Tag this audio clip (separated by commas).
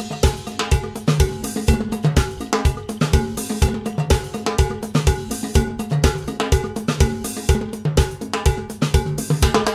Music